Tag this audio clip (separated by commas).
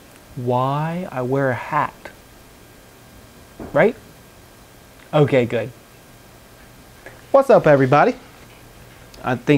Speech